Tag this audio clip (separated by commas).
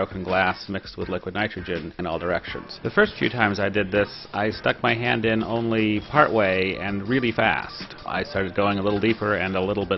Speech